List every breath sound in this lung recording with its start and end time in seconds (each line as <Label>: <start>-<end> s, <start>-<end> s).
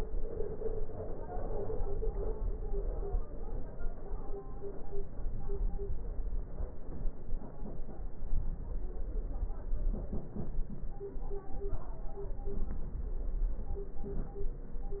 Inhalation: 13.98-14.60 s